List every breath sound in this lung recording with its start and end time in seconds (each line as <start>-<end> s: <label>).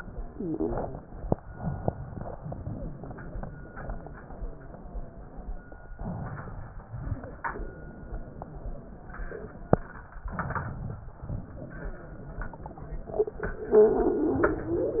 1.48-2.34 s: inhalation
2.42-5.56 s: exhalation
5.92-6.88 s: inhalation
6.96-10.10 s: exhalation
10.26-11.12 s: inhalation
11.30-13.74 s: exhalation